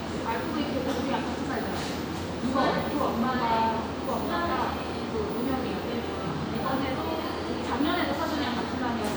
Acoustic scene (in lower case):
crowded indoor space